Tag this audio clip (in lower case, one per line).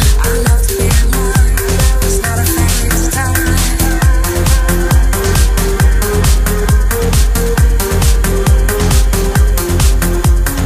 dance music